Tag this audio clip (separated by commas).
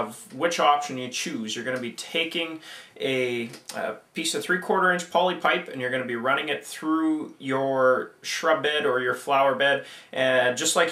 Speech